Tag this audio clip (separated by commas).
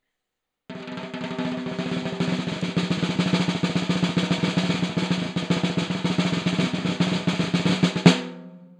Musical instrument, Percussion, Drum, Music, Snare drum